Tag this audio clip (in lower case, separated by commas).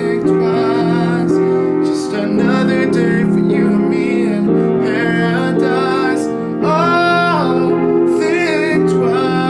music, male singing